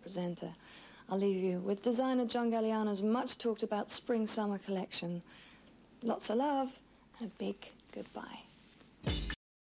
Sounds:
speech

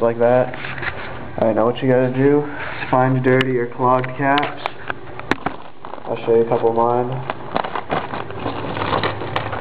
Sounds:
speech

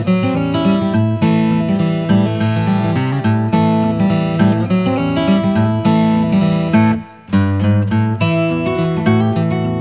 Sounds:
music

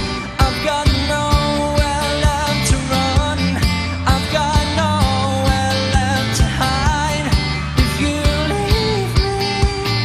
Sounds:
music

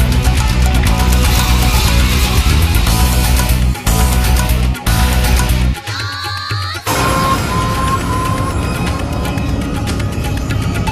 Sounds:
funny music
music

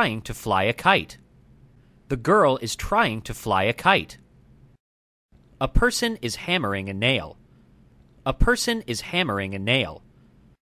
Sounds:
speech

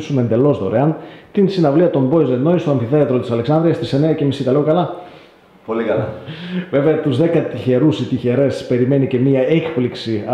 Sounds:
speech

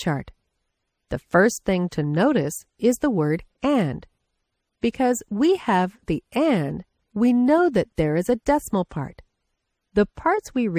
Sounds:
speech

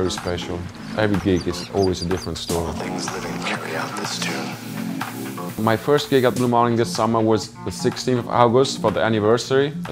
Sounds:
speech
music

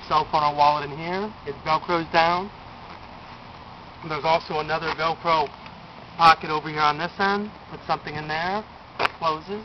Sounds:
speech

